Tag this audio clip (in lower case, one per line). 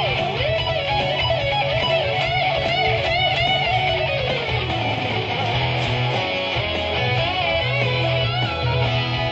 bass guitar
strum
musical instrument
plucked string instrument
acoustic guitar
guitar
music